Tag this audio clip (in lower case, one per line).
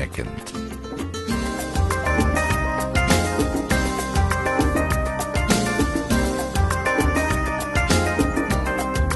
speech
male speech
music